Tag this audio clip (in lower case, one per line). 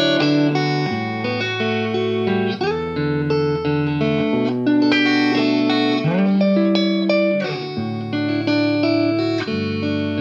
music